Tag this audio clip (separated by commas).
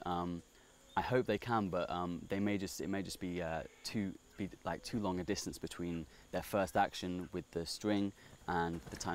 Speech